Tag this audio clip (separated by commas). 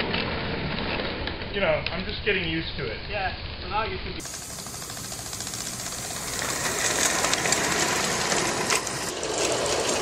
Speech